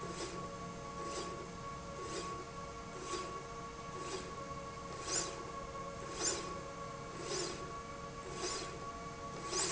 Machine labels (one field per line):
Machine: slide rail